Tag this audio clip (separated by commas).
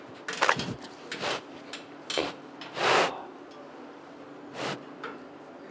Animal, livestock